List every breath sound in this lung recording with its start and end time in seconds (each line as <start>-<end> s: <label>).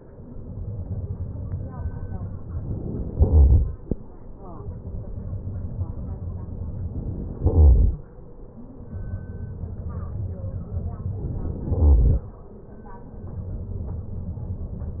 3.18-3.66 s: inhalation
7.43-7.90 s: inhalation
11.78-12.25 s: inhalation